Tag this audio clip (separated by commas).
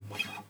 Acoustic guitar, Musical instrument, Plucked string instrument, Music, Guitar